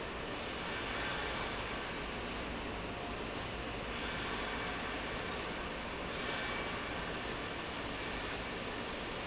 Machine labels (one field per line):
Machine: slide rail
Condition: normal